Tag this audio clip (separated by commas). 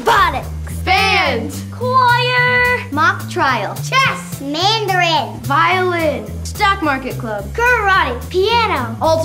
Speech, inside a large room or hall, Music